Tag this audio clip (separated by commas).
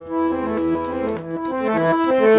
Music, Musical instrument, Accordion